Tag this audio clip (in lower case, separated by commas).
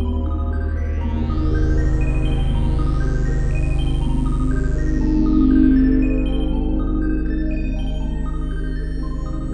electronic music, music, synthesizer, ambient music